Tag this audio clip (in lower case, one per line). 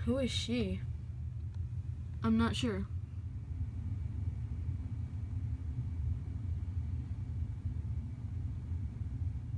speech